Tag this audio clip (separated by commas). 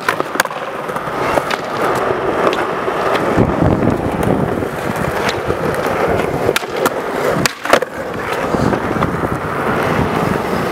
skateboarding, Skateboard